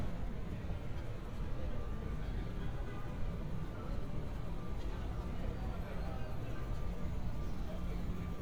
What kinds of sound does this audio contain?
car horn, reverse beeper, person or small group talking